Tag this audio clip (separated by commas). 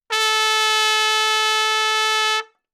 Brass instrument, Musical instrument, Trumpet, Music